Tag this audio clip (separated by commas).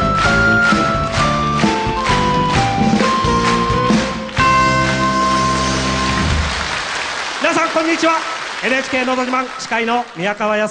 Techno, Speech, Music